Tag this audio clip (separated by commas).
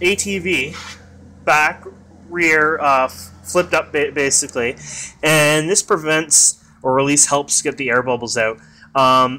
Speech